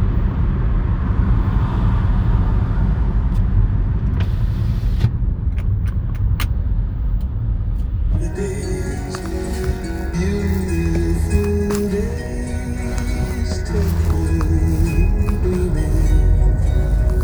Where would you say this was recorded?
in a car